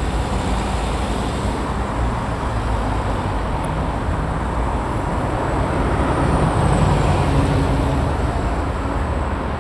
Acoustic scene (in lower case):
street